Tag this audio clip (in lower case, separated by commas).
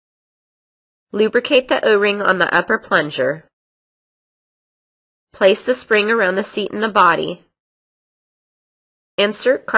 speech, speech synthesizer